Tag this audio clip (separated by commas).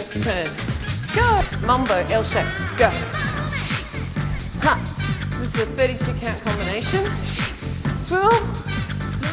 Music, Speech